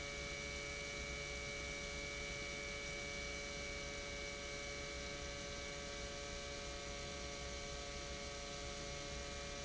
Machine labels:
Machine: pump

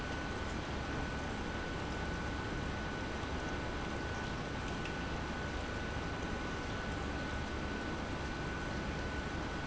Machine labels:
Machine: pump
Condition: normal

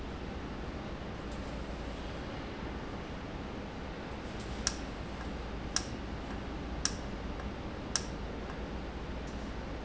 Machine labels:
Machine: valve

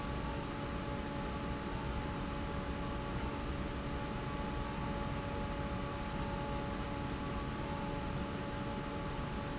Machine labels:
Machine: fan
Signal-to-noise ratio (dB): -6 dB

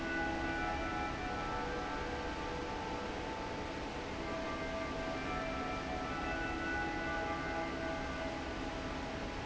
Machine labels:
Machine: fan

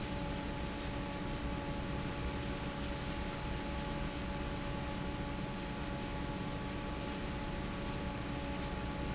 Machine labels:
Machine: fan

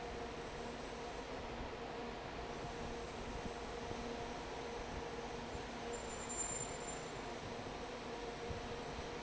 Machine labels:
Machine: fan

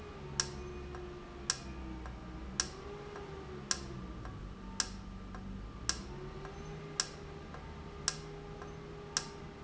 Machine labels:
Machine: valve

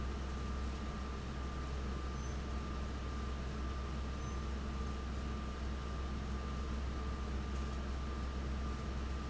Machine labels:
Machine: fan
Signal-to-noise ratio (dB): 0 dB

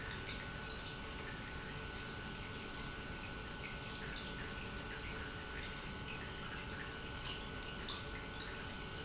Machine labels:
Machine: pump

